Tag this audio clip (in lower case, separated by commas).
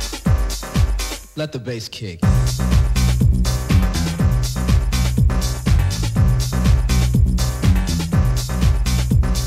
music